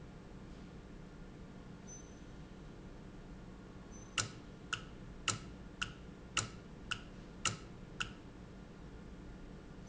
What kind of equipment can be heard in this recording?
valve